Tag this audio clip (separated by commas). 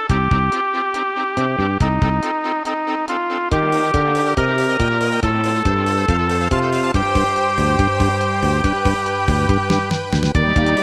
Music